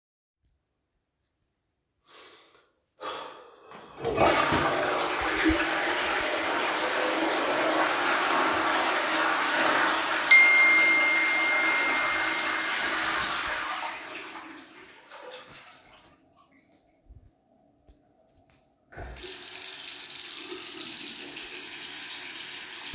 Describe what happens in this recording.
taking a deep breath,flushing the toilet while getting a notification from a phone,running the water